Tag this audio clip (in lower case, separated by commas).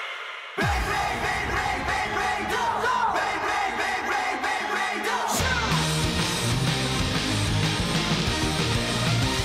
music